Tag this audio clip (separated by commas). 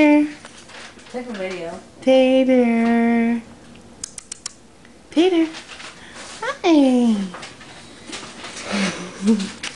Speech